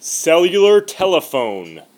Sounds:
human voice
speech

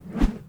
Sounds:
whoosh

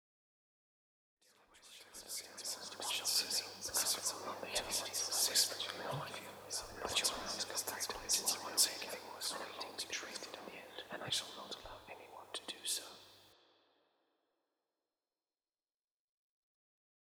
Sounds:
whispering
human voice

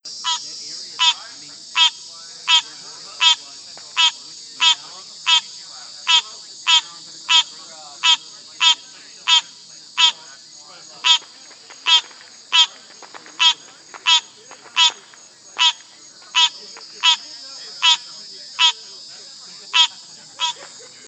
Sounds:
animal
wild animals
frog

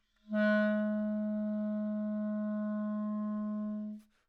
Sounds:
musical instrument
music
woodwind instrument

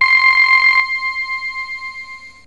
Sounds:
music
keyboard (musical)
musical instrument

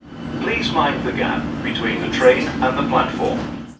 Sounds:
vehicle
underground
rail transport
human voice

